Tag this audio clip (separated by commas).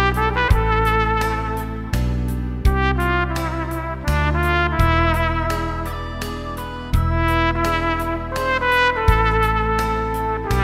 playing trumpet